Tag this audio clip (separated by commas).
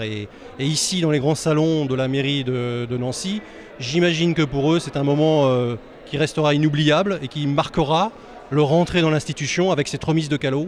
Speech